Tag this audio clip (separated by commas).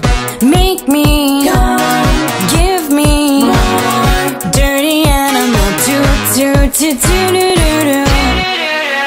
Music